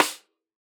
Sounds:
Drum, Music, Snare drum, Percussion, Musical instrument

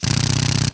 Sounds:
Power tool, Drill, Tools

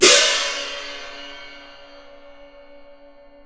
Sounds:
Music, Percussion, Cymbal, Crash cymbal, Musical instrument

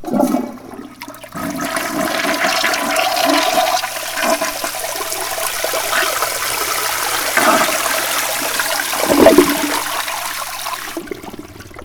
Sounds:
home sounds, Toilet flush

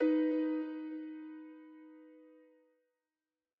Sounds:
Keyboard (musical), Music, Piano, Musical instrument

